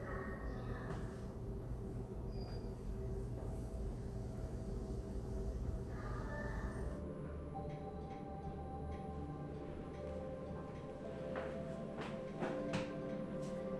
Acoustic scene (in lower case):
elevator